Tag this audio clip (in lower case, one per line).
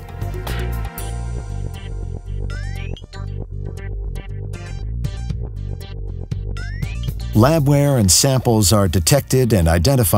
speech
music